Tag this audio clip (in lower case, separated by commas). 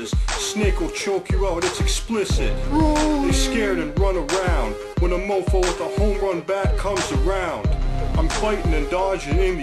speech, music